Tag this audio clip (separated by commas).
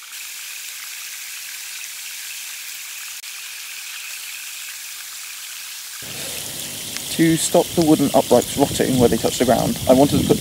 Stream, Speech